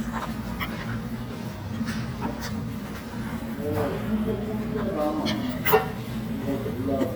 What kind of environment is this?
restaurant